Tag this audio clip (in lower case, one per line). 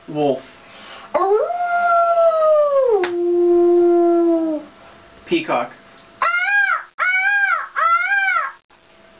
speech